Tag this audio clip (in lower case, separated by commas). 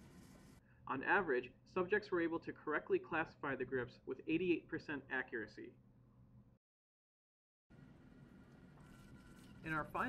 speech